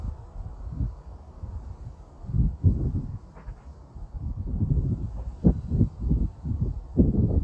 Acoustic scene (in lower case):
residential area